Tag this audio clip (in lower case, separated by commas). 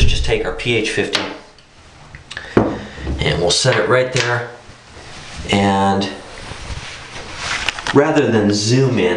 speech